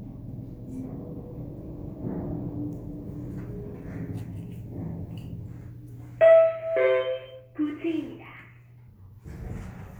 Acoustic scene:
elevator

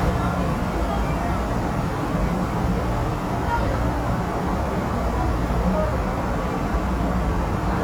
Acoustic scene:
subway station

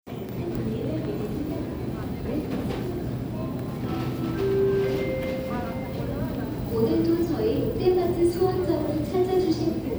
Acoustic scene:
crowded indoor space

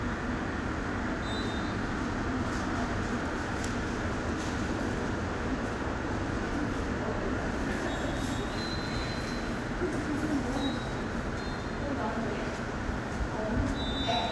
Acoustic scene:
subway station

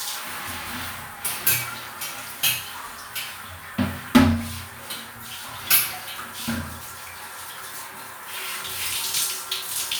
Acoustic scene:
restroom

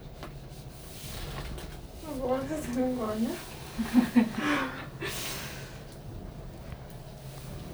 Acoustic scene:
elevator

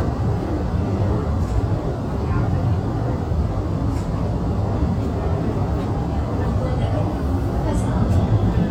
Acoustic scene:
subway train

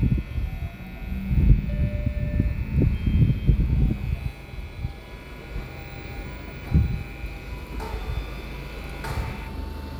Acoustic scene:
residential area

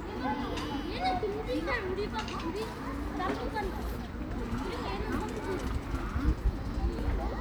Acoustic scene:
park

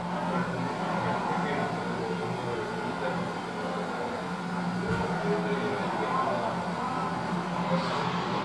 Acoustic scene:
cafe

